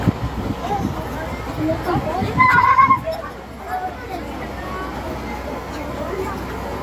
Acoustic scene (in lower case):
street